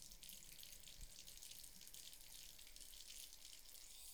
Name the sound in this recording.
water tap